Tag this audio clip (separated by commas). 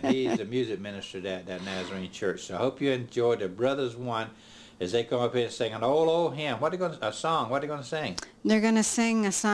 Speech